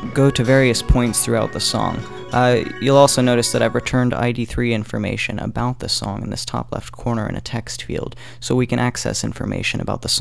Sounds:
speech, music

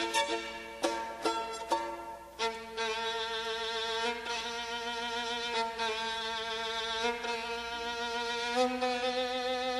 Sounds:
pizzicato, bowed string instrument, fiddle

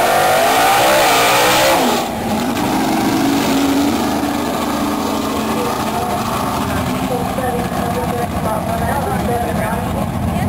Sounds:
speech

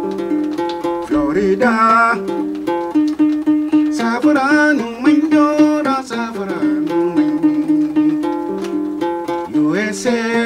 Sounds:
banjo, musical instrument, music, plucked string instrument

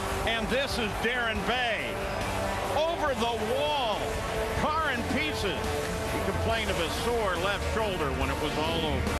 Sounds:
speech, music

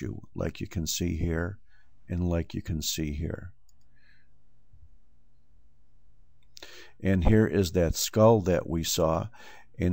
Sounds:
inside a small room, speech

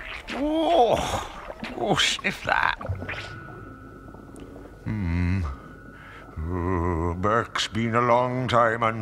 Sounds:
speech, music, sniff

